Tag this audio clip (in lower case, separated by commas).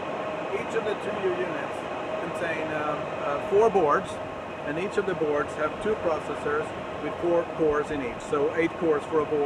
speech